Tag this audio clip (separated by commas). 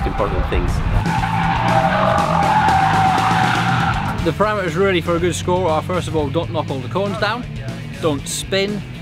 Motor vehicle (road), Car passing by, Music, Speech, Car, Vehicle